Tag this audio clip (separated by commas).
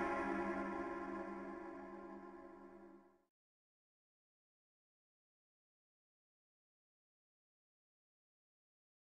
Music